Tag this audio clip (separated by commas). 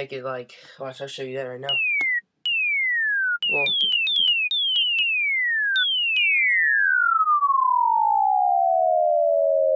Sine wave, Chirp tone